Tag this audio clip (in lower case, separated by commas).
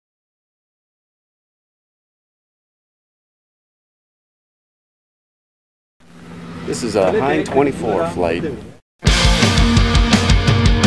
vehicle, music, speech